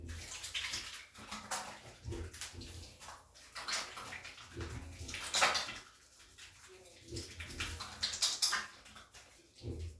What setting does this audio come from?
restroom